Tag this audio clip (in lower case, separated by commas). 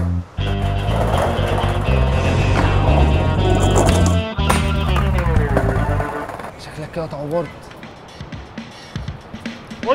music, speech